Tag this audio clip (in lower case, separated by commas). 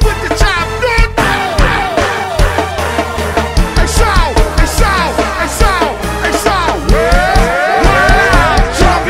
music